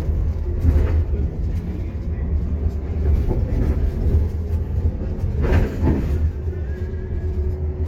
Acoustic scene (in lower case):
bus